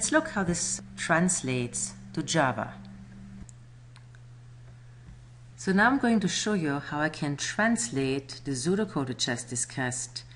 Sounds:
speech

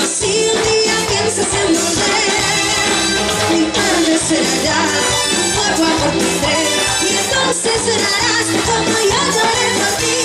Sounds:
music

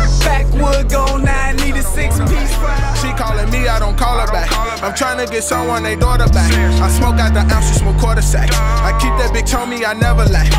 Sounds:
music

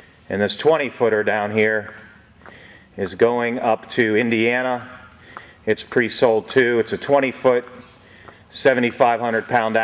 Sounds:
speech

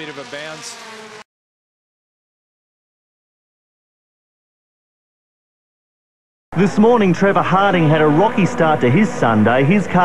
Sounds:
speech

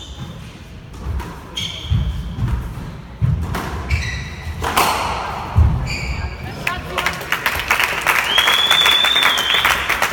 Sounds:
playing squash

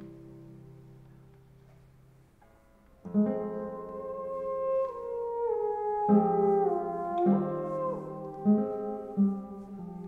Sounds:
playing theremin

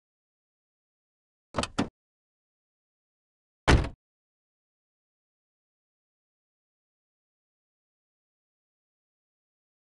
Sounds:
opening or closing car doors

